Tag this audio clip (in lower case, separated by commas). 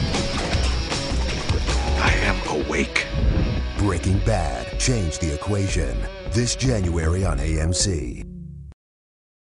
music, speech